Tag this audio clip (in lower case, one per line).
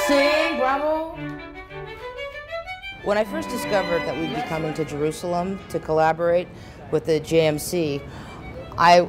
speech
music